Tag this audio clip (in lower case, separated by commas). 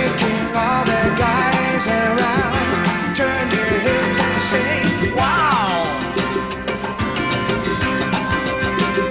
music, wood block